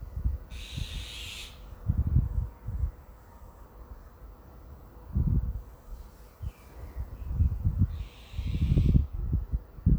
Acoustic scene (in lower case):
residential area